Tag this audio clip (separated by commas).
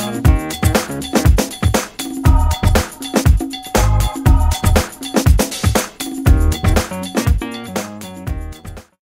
Music